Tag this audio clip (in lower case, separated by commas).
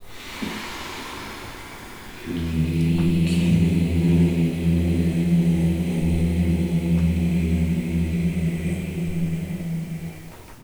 human voice, singing